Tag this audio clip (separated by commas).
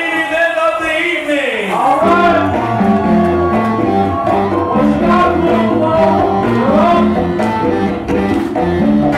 Crowd, Speech, Music, Chatter